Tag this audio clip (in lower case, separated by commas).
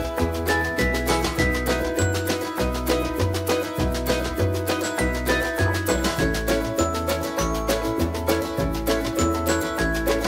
music